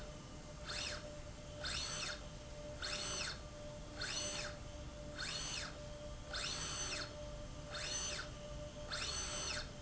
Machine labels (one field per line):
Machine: slide rail